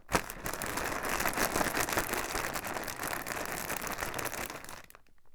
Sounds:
crinkling

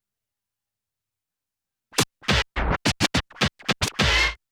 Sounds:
Musical instrument, Scratching (performance technique), Music

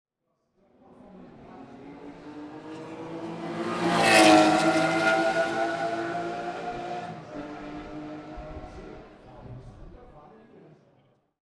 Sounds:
Accelerating, Engine

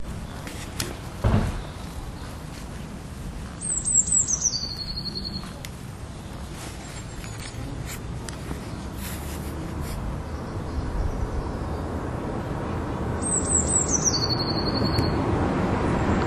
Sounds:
Bird, Wild animals, Animal, bird song, Chirp

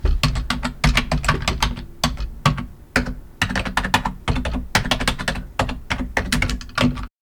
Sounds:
Typing, home sounds

